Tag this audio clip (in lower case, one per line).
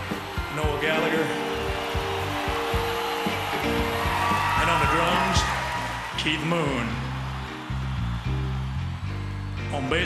speech
music